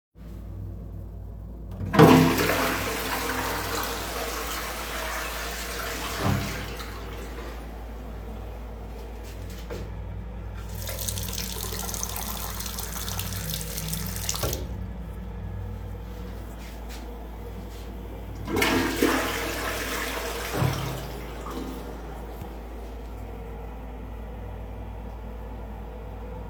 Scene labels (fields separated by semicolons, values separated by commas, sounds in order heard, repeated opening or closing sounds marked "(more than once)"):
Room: lavatory; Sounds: toilet flushing, running water